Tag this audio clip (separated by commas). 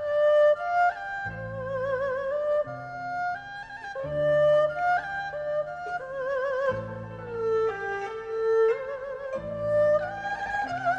playing erhu